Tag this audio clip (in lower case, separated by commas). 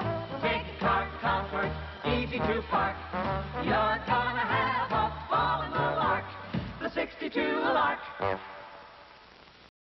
music